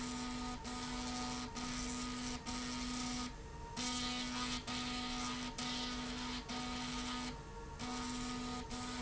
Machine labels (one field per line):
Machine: slide rail